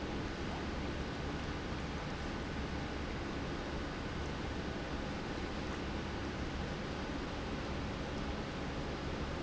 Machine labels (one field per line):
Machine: pump